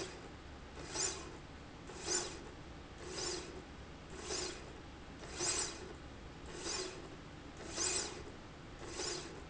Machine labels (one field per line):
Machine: slide rail